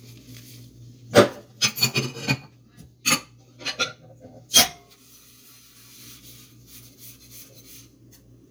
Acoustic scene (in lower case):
kitchen